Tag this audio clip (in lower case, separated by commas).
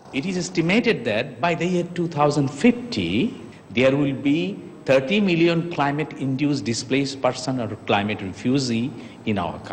speech